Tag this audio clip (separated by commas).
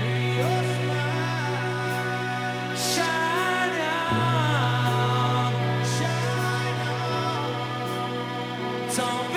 Music